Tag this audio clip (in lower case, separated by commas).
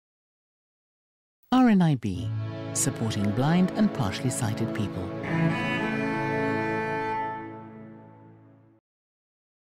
silence, music, speech, cello